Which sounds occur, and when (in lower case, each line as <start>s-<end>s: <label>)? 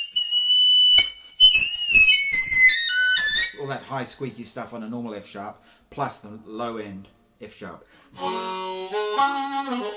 0.0s-3.9s: music
0.0s-9.9s: background noise
3.6s-5.5s: man speaking
5.6s-5.8s: breathing
5.9s-7.1s: man speaking
7.4s-7.8s: man speaking
7.9s-8.1s: breathing
8.1s-9.9s: music